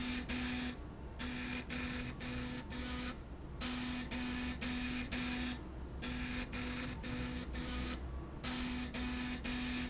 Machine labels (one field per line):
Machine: slide rail